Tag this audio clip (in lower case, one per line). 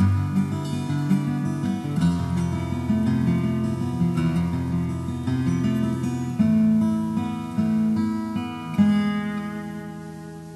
guitar
music
plucked string instrument
musical instrument